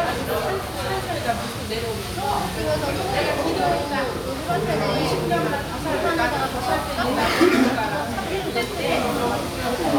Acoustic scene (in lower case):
restaurant